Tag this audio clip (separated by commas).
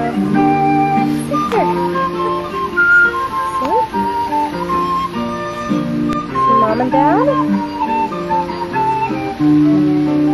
Music, Speech, Musical instrument, outside, rural or natural